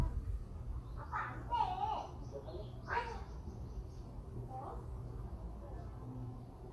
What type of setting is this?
residential area